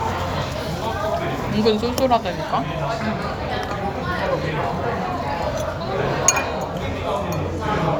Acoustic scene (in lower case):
restaurant